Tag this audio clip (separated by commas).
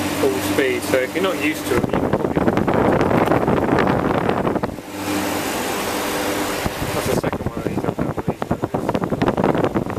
Wind, Wind noise (microphone)